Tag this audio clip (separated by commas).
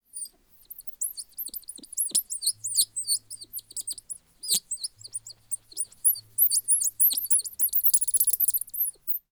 Animal, Wild animals, Bird